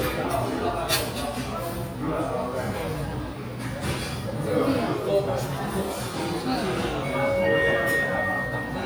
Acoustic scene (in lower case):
restaurant